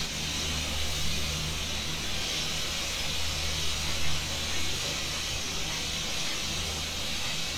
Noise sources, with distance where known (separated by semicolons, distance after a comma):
unidentified powered saw, near